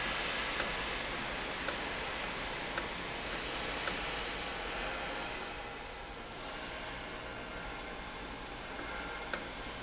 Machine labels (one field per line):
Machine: valve